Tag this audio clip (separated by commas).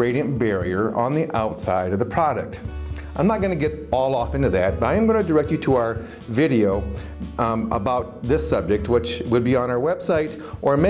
Speech, Music